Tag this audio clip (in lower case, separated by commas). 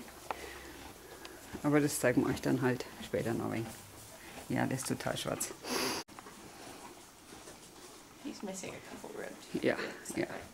speech